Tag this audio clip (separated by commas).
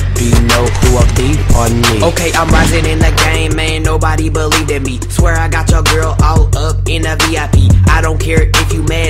Pop music, Music